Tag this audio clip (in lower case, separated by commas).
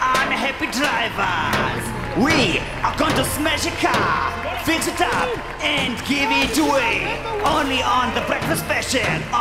speech